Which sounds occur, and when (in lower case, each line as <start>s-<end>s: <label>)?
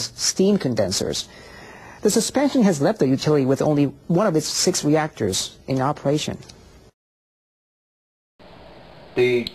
0.0s-0.3s: human sounds
0.0s-7.0s: background noise
0.4s-1.2s: female speech
1.2s-2.1s: breathing
2.0s-3.9s: human sounds
4.1s-5.5s: human sounds
5.7s-6.6s: human sounds
8.4s-9.5s: background noise